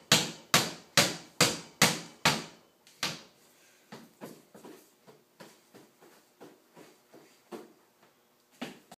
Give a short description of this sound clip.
There is a rapping sound which sounds like bamboo tapping on a screen door